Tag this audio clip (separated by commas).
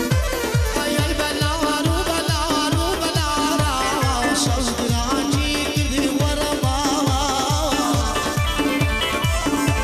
Music